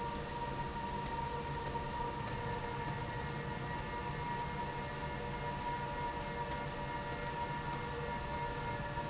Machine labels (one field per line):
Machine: slide rail